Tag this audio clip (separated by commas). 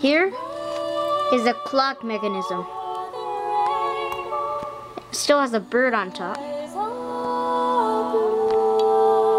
Music, Speech